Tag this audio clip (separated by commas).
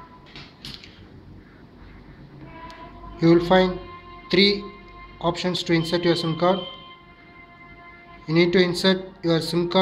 Speech